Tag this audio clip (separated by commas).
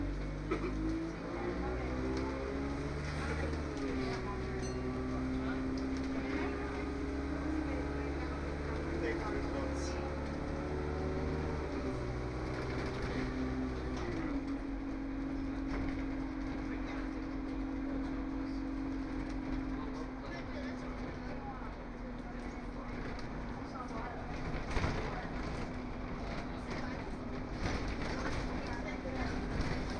Bus, Motor vehicle (road), Vehicle